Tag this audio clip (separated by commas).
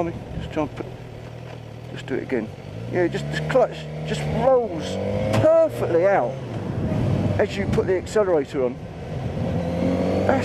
Motorcycle, Speech, Vehicle